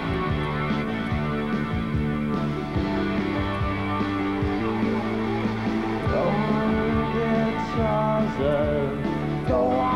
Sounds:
music

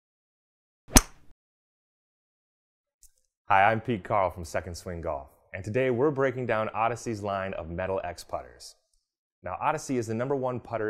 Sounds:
speech

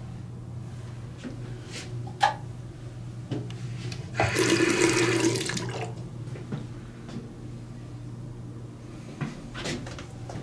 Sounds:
water
sink (filling or washing)

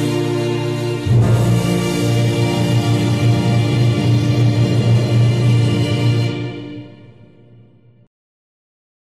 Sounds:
music

